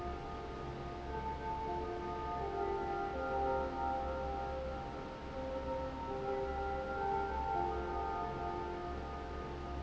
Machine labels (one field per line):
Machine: fan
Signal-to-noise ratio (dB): -6 dB